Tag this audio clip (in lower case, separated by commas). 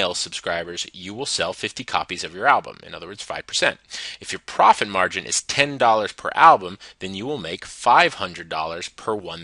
speech